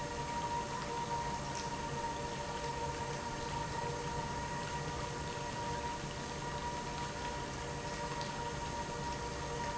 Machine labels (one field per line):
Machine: pump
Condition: normal